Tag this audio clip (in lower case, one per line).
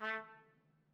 trumpet
brass instrument
music
musical instrument